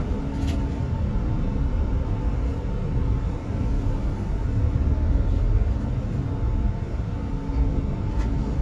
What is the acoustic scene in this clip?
bus